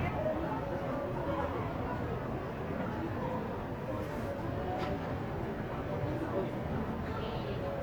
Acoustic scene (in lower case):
crowded indoor space